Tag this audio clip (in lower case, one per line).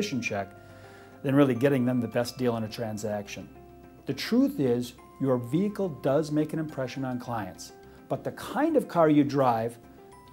music
speech